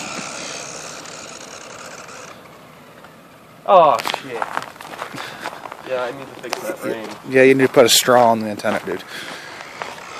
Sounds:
Car, Vehicle, Speech

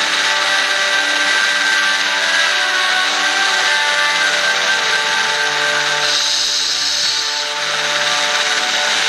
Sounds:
Music

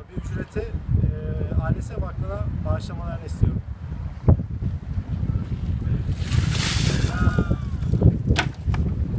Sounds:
Speech

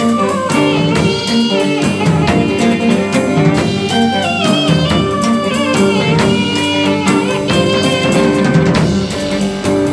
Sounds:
Music, Guitar, Electric guitar, Musical instrument, Plucked string instrument

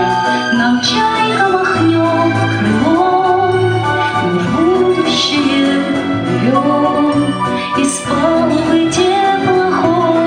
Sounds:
Music

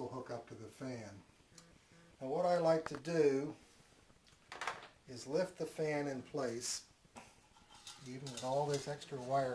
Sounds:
Speech

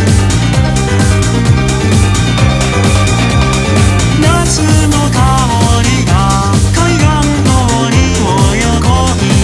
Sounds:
Music

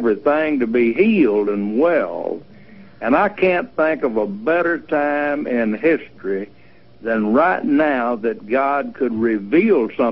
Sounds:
Speech, Radio

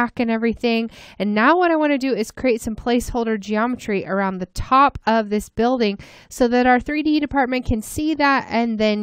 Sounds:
Speech

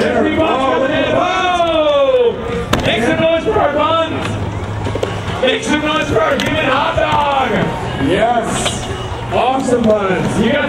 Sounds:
Speech

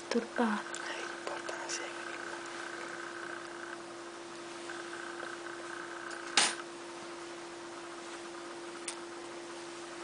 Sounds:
Speech, inside a small room

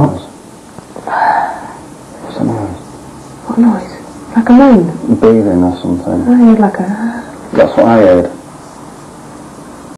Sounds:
Speech

